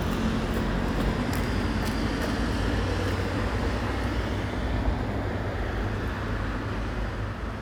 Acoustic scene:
street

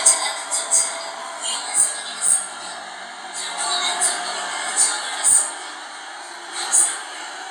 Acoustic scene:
subway train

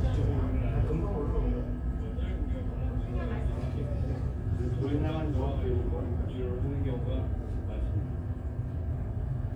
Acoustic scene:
crowded indoor space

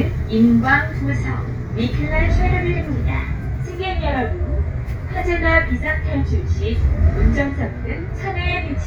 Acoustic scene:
bus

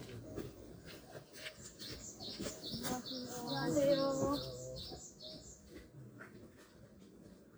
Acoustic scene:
park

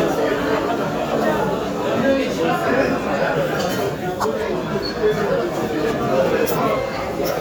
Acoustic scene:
cafe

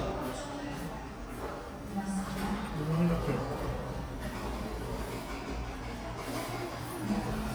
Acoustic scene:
cafe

